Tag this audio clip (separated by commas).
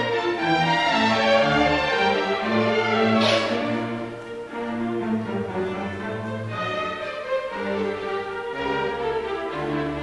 Music, Orchestra, Violin, Musical instrument